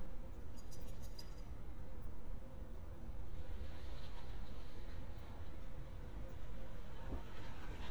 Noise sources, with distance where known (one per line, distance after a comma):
background noise